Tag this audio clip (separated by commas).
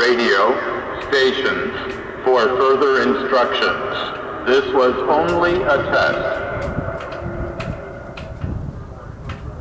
Speech